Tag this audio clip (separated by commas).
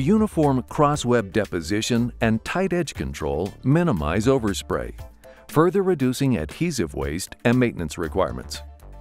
Music, Speech